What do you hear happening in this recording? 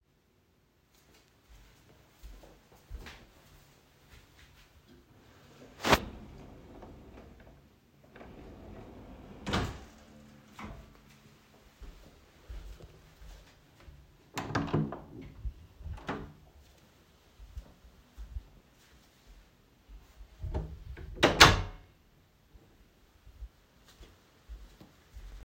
I carried the device into the bedroom while walking. I opened and closed a drawer and also opened and closed the room door.